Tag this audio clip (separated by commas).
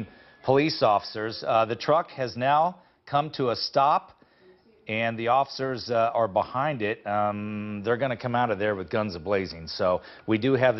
Speech